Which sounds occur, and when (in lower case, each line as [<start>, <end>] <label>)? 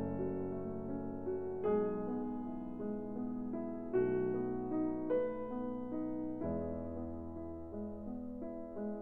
[0.00, 9.01] music